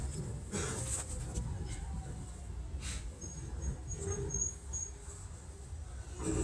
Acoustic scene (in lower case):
subway train